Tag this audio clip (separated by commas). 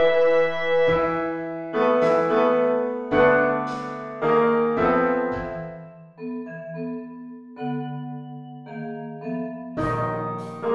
Vibraphone, Music, Percussion, Piano, inside a small room